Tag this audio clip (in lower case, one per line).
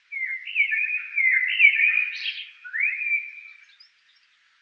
animal
wild animals
bird